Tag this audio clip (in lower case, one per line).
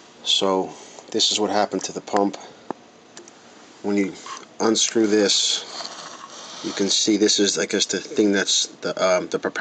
speech